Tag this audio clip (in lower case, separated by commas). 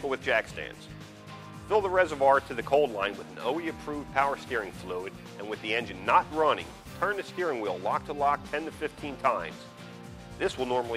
speech, music